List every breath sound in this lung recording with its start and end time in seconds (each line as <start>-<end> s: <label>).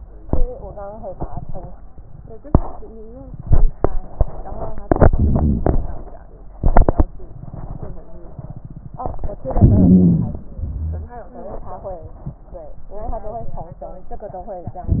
4.88-6.05 s: inhalation
9.41-10.49 s: inhalation
10.64-11.16 s: wheeze